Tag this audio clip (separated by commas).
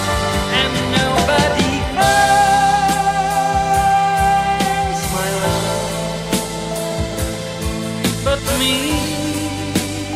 Music